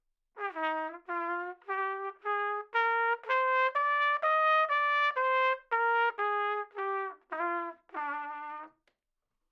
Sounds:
musical instrument, brass instrument, trumpet, music

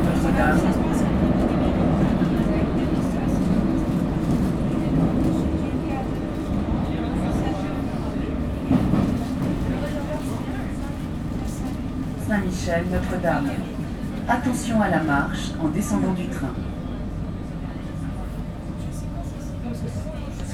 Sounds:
vehicle

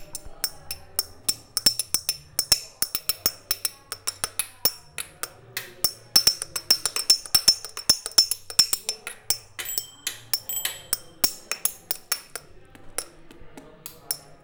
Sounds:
vehicle, bicycle, bicycle bell, alarm, bell

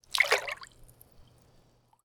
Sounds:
water, splash, liquid

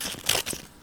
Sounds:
domestic sounds, scissors

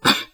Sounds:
respiratory sounds, cough

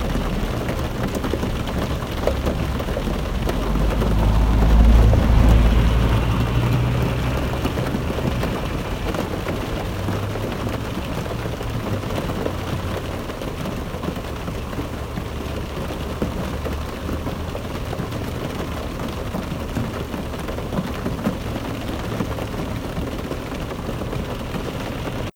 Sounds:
water, rain

